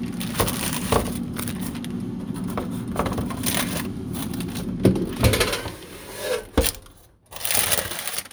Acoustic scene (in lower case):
kitchen